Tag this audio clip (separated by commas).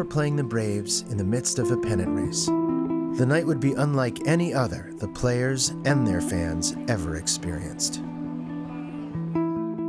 Speech, Music